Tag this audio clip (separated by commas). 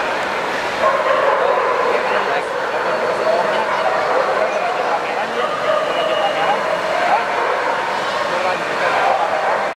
Domestic animals, Dog, Speech, Animal, Bow-wow